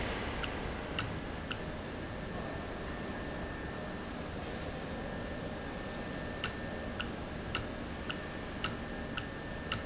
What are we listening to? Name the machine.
valve